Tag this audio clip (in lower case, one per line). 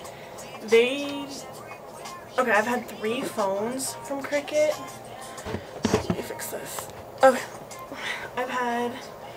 speech
music